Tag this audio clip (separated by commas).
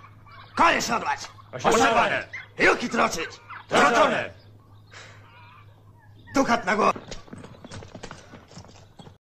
Speech